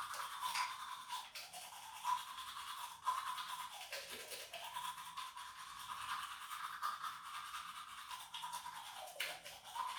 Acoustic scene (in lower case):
restroom